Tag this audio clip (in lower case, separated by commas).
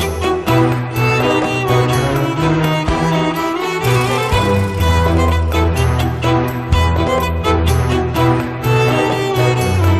double bass, cello, bowed string instrument